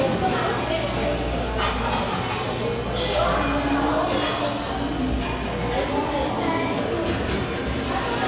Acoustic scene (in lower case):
restaurant